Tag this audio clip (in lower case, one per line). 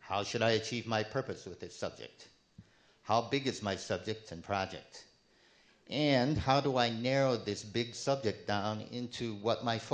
speech